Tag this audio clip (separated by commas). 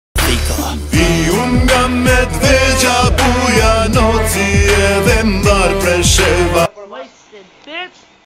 Speech, Music